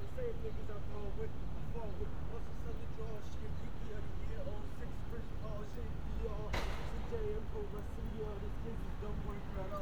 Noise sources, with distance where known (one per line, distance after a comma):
unidentified human voice, near